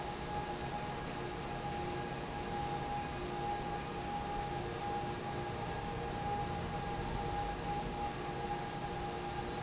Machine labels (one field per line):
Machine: fan